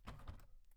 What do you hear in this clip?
wooden window opening